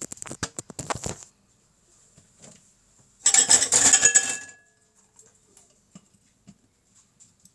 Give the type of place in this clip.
kitchen